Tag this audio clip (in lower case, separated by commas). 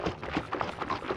splatter, liquid, water